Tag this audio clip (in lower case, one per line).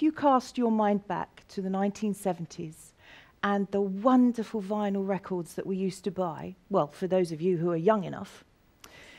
speech